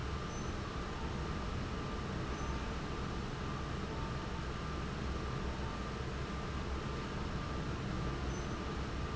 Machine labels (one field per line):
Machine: fan